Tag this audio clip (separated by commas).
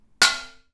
dishes, pots and pans, home sounds